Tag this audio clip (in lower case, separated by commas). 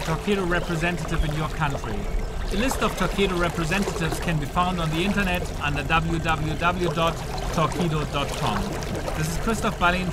vehicle, speech, boat